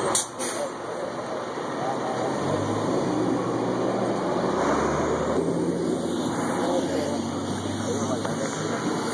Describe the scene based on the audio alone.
Chatter muffled by background nose of a bus accelerating